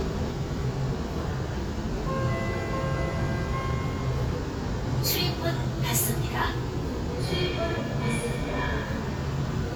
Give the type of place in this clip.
subway train